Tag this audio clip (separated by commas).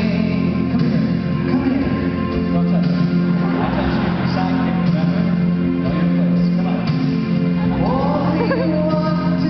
Music